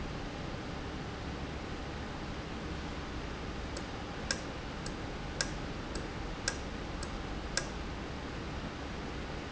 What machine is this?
valve